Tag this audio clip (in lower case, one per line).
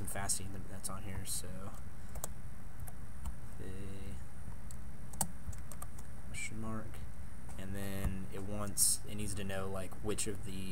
speech